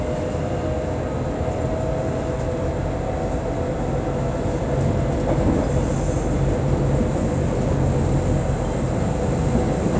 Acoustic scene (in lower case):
subway train